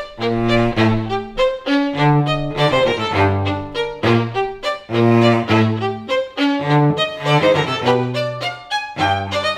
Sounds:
fiddle
music
cello
musical instrument

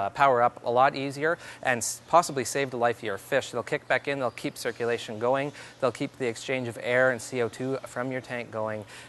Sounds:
speech

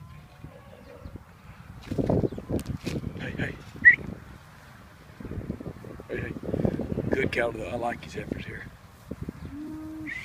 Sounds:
speech

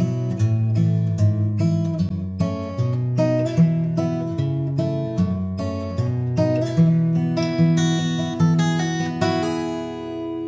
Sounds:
plucked string instrument
music
musical instrument
guitar
acoustic guitar

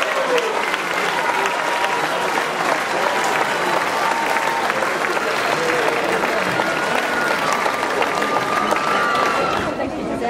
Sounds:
outside, urban or man-made
speech
run
chatter
people running

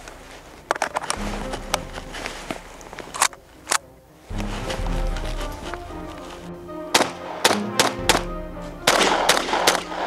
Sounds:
machine gun shooting

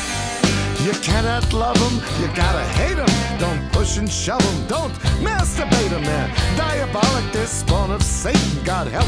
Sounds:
music
exciting music

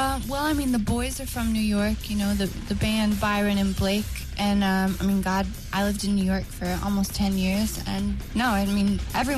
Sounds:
music
speech

